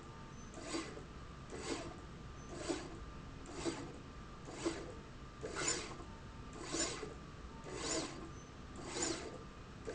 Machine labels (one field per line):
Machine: slide rail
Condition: abnormal